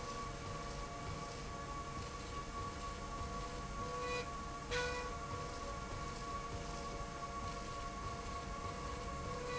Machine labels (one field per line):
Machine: slide rail